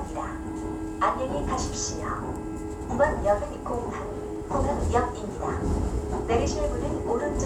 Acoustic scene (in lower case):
subway train